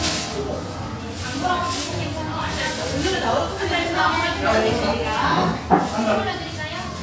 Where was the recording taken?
in a cafe